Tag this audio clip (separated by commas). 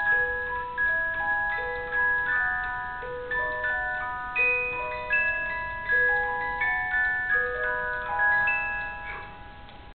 Tick-tock, Tick, Music